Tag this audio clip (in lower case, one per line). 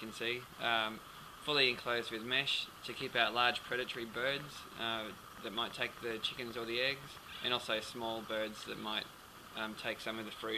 speech